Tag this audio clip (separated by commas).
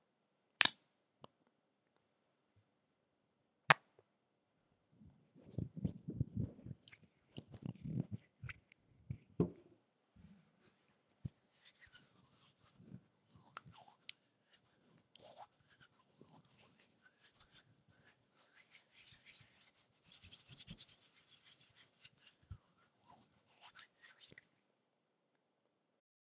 Hands